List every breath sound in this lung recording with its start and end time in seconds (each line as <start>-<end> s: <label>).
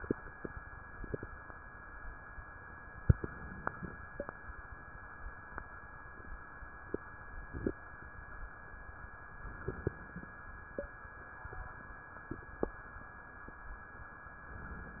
3.06-3.96 s: inhalation
9.39-10.29 s: inhalation